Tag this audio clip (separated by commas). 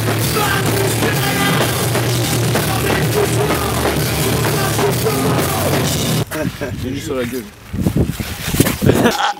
Speech, Music